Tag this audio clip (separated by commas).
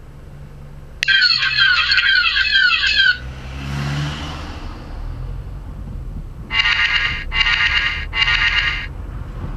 Car